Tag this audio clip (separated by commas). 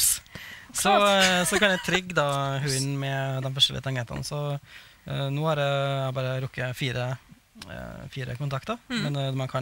Speech